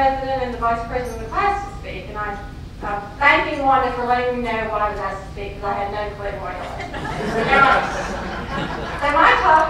A woman gives a speech, a crowd laughs